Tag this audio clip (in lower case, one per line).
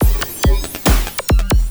percussion
drum kit
music
musical instrument